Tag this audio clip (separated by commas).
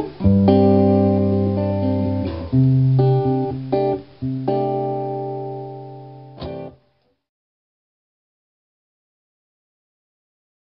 Music